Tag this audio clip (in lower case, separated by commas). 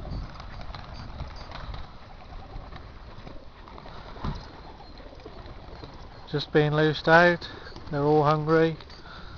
bird, dove, speech